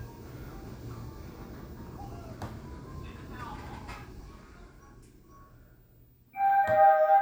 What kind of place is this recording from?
elevator